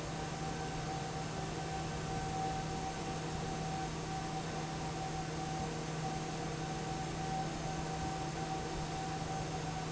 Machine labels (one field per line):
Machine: fan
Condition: normal